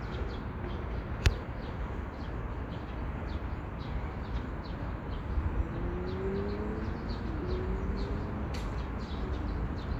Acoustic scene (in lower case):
park